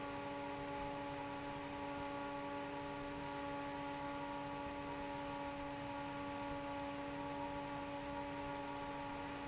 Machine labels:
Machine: fan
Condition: normal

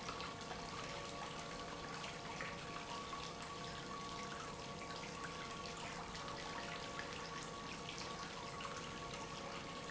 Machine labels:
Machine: pump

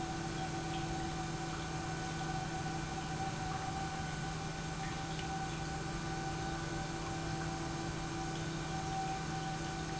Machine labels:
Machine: pump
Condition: normal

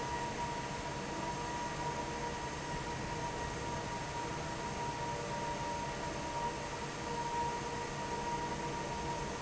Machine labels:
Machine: fan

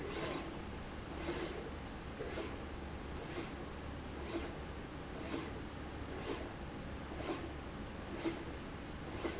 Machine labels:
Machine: slide rail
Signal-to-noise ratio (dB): 0 dB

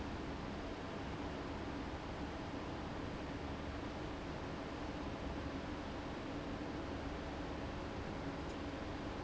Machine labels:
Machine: fan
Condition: abnormal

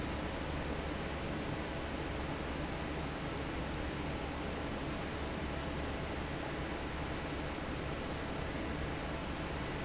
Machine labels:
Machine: fan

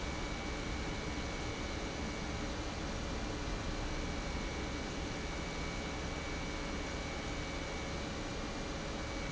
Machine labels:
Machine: pump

